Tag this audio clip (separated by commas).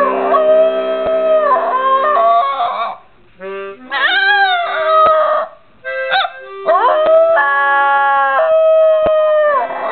Growling, Howl